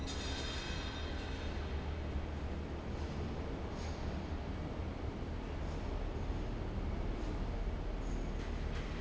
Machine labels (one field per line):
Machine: fan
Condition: abnormal